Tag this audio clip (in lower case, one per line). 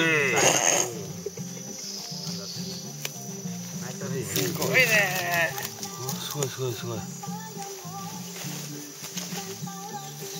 speech
music